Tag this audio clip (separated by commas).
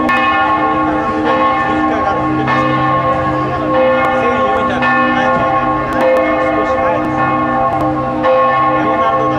church bell ringing